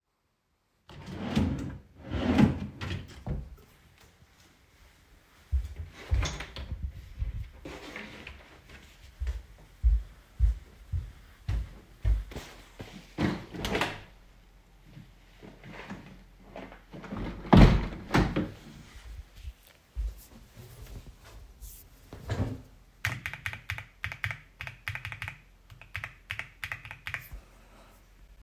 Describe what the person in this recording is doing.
I put down some clothes to the wardrobe and then went to open the window, I then went to my desk and started typing on my keyboard